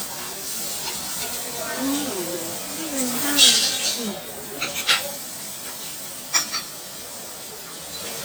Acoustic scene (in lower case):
restaurant